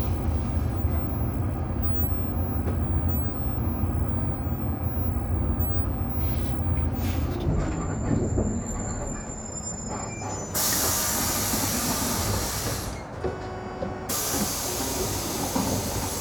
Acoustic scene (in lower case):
bus